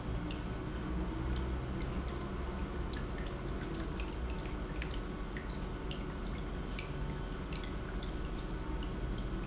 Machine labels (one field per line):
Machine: pump